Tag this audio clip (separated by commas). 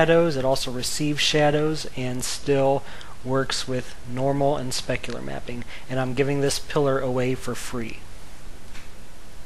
Speech